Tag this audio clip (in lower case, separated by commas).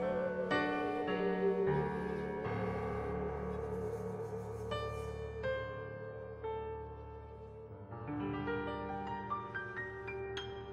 musical instrument, music